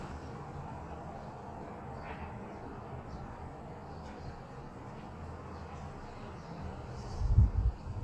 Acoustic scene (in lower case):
residential area